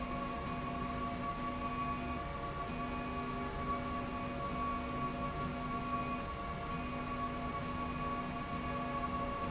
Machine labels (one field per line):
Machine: slide rail